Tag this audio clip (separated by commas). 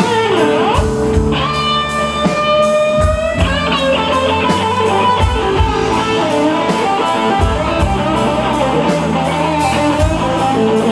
Music